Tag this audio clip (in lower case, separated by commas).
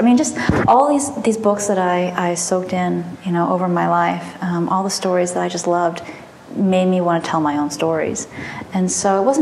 speech